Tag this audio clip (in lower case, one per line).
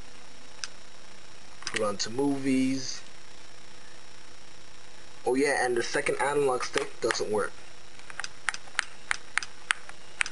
speech